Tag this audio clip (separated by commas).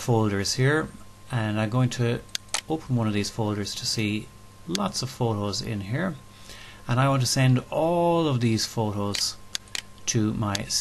Speech